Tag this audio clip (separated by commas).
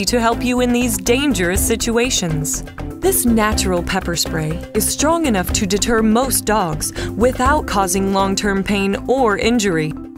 Music, Speech